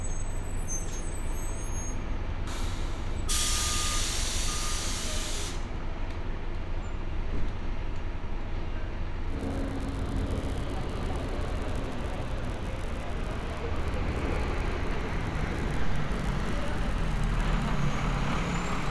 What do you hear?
large-sounding engine